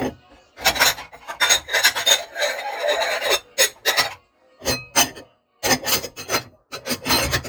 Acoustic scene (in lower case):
kitchen